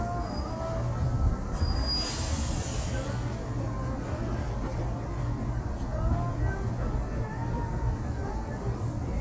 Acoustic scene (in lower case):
street